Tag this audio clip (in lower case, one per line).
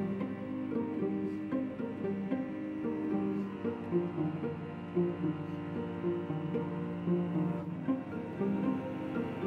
cello
musical instrument
music